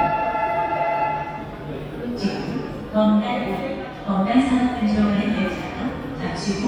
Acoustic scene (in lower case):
subway station